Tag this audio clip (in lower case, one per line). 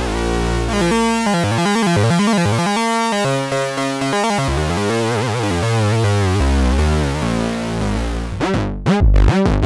music
sampler